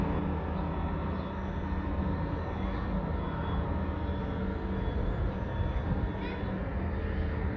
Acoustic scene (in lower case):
residential area